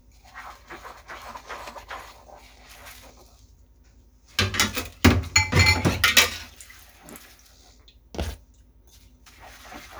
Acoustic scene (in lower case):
kitchen